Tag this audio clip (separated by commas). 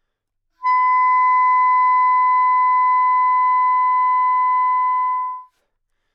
Wind instrument, Musical instrument, Music